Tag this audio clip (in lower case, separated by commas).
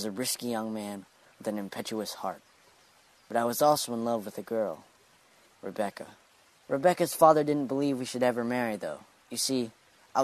speech